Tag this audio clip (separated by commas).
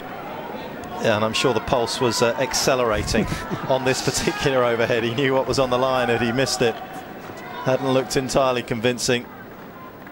Speech